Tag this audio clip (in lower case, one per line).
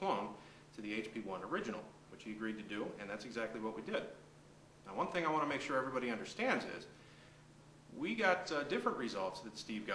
speech